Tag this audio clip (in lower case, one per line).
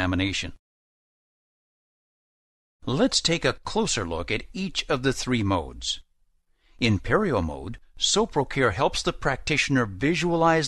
speech